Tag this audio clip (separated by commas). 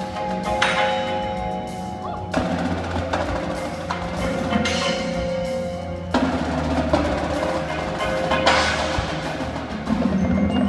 Percussion, Music